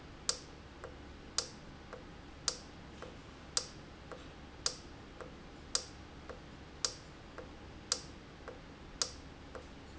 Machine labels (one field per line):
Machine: valve